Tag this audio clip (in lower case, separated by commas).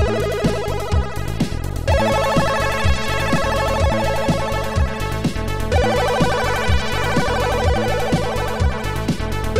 music